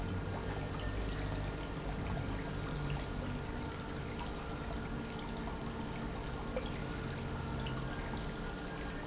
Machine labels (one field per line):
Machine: pump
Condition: normal